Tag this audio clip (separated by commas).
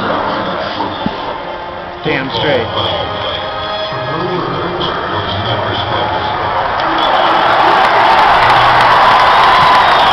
Speech, Echo, Music